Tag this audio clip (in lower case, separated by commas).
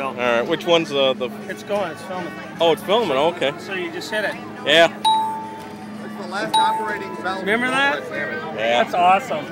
music, speech